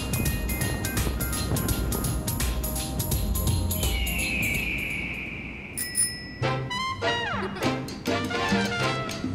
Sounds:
crackle, music

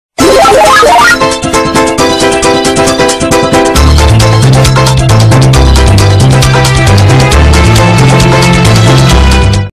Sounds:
music

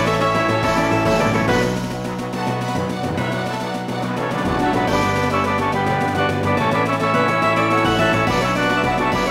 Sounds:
music

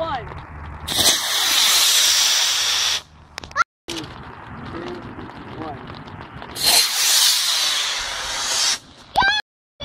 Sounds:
speech

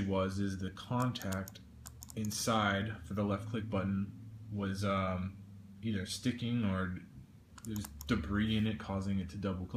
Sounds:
speech

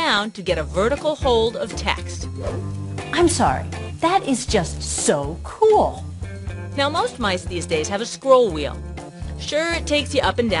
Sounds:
music, speech

